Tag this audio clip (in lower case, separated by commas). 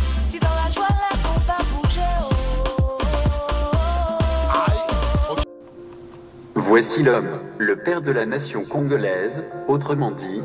speech, music